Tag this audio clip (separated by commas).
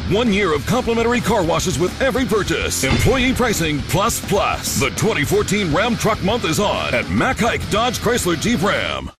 Speech, Music